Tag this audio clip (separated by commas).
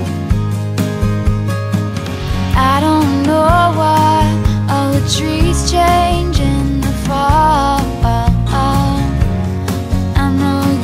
Music